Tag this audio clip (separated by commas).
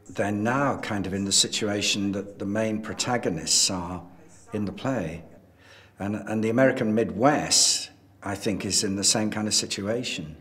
Speech